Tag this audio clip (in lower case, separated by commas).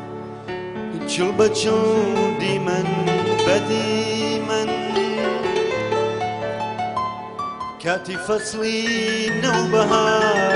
music